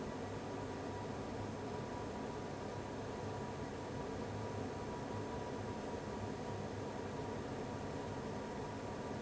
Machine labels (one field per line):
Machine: fan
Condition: abnormal